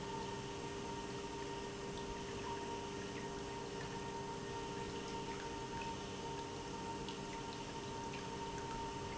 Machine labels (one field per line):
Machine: pump